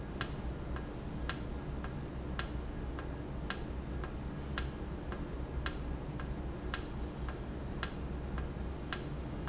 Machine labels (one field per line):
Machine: valve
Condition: normal